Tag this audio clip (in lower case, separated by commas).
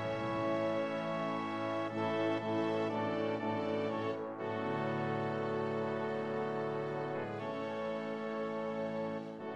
music